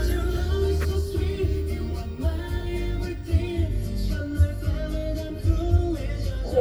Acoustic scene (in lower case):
car